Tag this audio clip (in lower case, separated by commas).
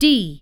human voice, woman speaking, speech